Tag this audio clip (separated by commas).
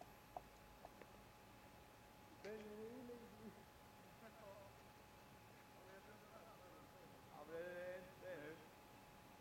Speech